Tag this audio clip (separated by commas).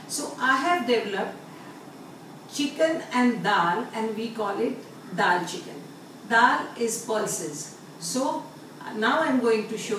Speech